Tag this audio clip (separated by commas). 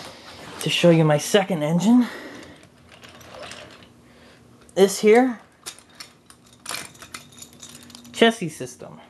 Train, inside a small room, Speech